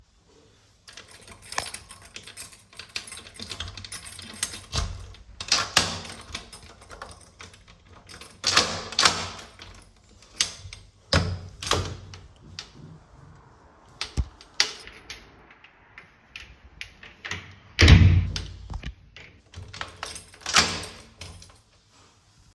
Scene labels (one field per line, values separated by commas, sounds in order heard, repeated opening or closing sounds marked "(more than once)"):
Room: hallway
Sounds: keys, door (more than once)